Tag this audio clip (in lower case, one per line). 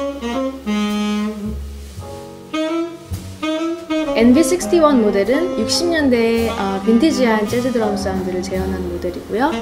drum
drum kit
speech
bass drum
music
musical instrument